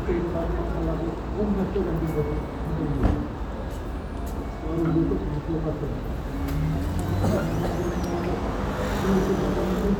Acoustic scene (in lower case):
street